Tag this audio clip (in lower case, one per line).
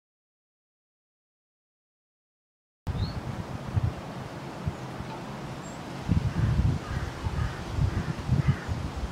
crow cawing